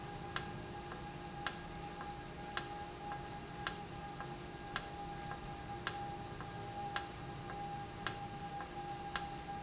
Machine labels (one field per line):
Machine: valve